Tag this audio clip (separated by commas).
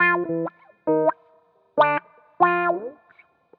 Plucked string instrument, Guitar, Music, Musical instrument